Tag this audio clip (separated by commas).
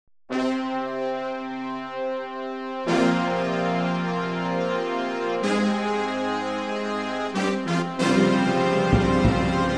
Theme music